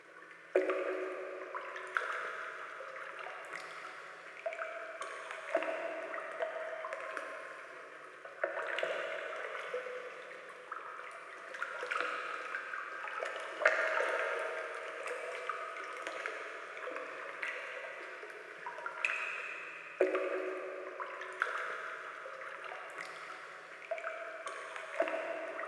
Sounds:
Drip, Liquid, splatter, dribble, Pour

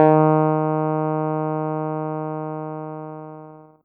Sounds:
Music, Musical instrument, Keyboard (musical)

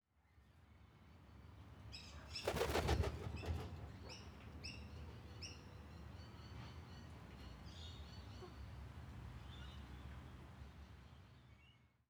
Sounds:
Animal, Bird, Wild animals

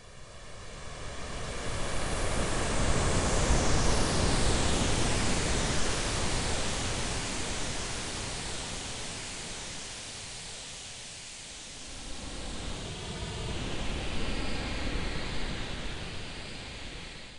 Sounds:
Ocean, Water

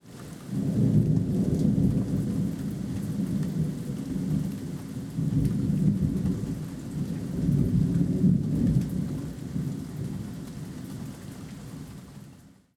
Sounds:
Thunderstorm, Water, Rain

